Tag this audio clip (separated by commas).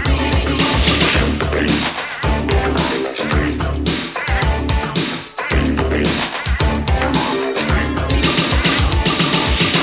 Music